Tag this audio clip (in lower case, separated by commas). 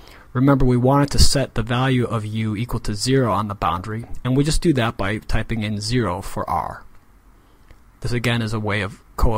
speech